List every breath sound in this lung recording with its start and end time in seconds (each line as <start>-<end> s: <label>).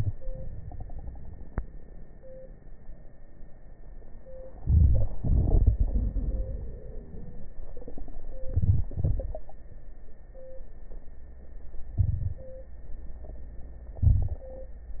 4.63-5.10 s: inhalation
5.18-7.49 s: exhalation
5.18-7.49 s: crackles
8.51-8.88 s: inhalation
8.94-9.45 s: exhalation
11.99-12.44 s: inhalation
14.02-14.47 s: inhalation